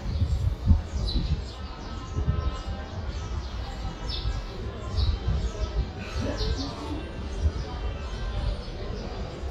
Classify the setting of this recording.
subway station